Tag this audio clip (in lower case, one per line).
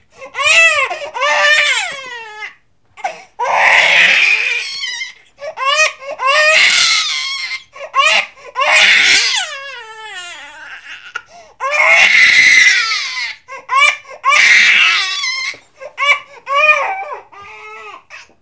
sobbing
human voice